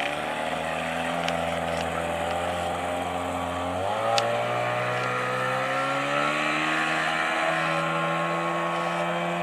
A motorboat taking off